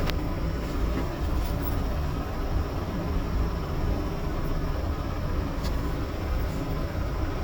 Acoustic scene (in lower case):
bus